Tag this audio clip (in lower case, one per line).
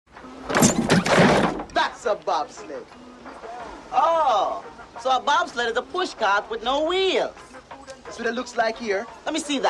music
speech